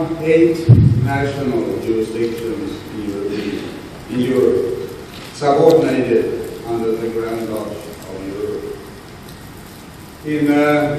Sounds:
narration, male speech, speech

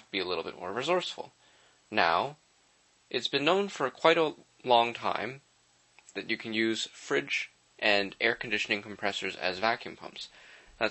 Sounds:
speech

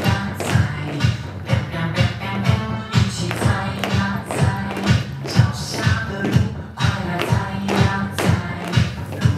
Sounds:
music

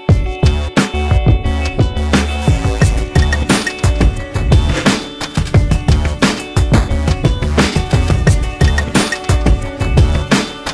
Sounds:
music

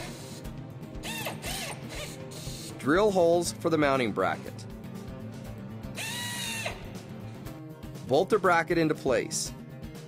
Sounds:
music, speech

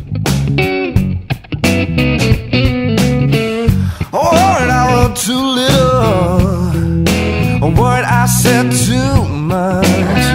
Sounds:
man speaking, music

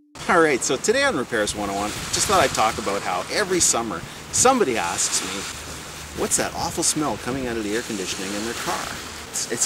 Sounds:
speech

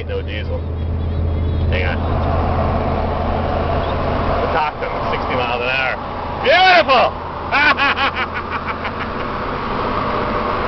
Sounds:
car, outside, urban or man-made, speech, vehicle

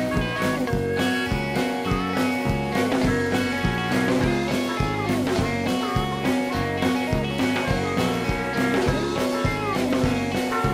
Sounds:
music

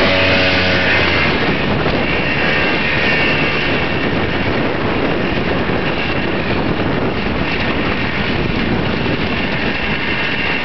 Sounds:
motorcycle, vehicle

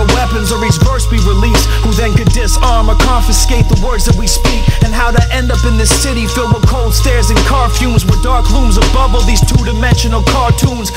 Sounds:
music

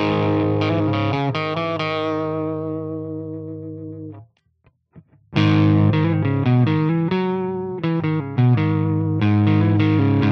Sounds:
music, distortion

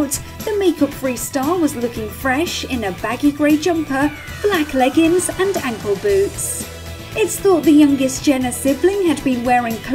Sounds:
speech, music

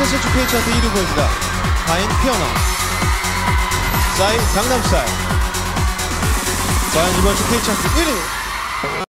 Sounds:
funk, music, pop music, speech

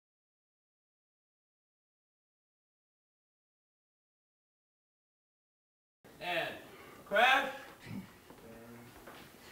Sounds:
speech

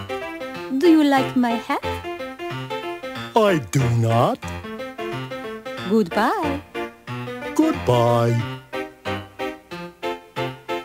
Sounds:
speech, music

